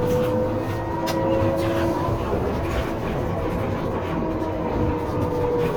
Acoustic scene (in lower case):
bus